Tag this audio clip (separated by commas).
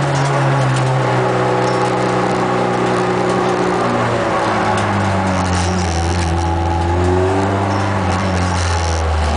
Car, Vehicle, Motor vehicle (road)